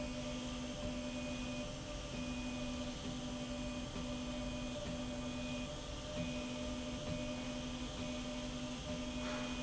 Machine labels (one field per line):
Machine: slide rail